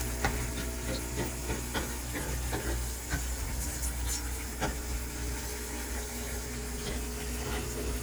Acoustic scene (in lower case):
kitchen